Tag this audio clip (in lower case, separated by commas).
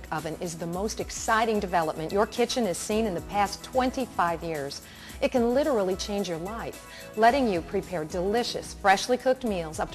speech, music